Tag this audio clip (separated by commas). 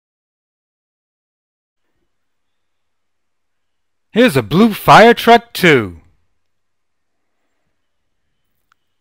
Speech